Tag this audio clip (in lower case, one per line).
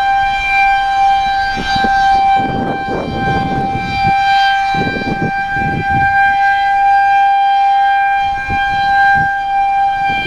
siren